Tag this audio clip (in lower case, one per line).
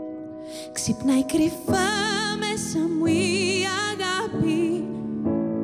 music